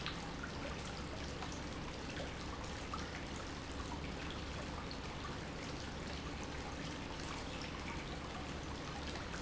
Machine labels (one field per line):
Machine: pump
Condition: normal